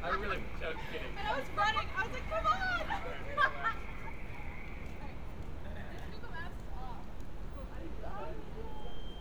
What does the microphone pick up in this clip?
unidentified human voice